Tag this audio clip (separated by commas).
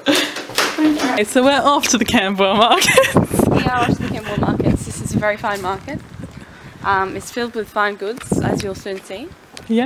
Speech